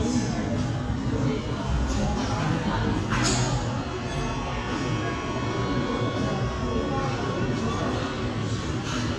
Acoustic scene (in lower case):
cafe